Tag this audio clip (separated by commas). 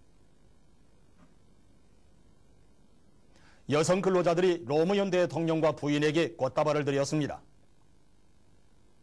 Speech